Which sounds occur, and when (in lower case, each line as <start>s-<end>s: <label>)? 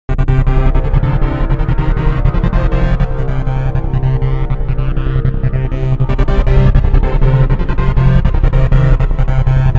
0.1s-9.7s: music